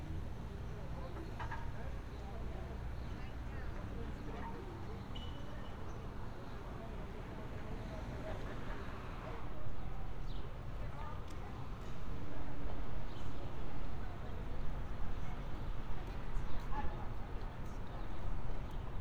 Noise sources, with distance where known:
person or small group talking

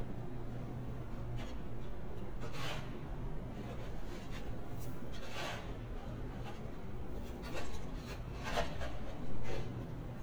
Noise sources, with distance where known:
background noise

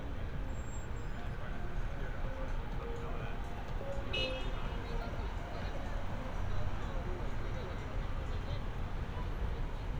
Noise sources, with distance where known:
car horn, near
music from an unclear source
person or small group talking

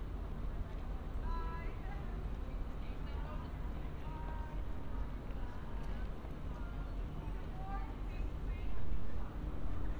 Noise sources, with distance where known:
person or small group talking

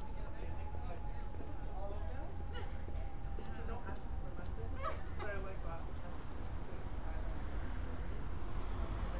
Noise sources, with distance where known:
person or small group talking, near

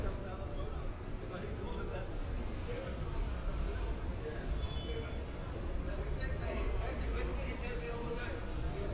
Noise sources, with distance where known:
car horn, far
person or small group talking

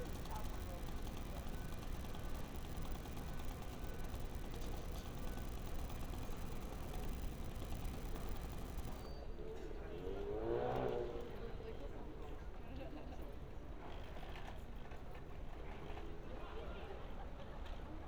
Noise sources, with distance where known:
person or small group talking

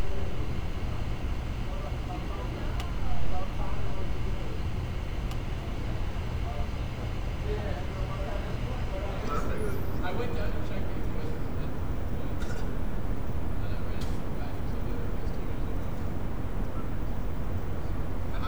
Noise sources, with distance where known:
person or small group talking

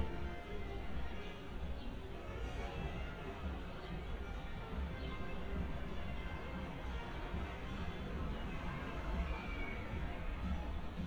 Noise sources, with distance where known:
music from a fixed source
music from an unclear source

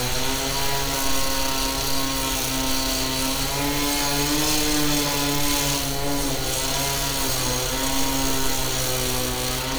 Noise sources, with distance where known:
unidentified powered saw, near

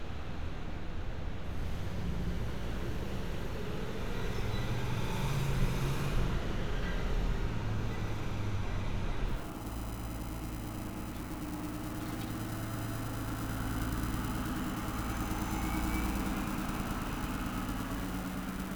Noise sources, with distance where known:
large-sounding engine, near

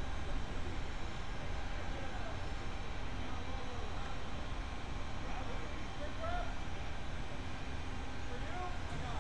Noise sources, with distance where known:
unidentified human voice

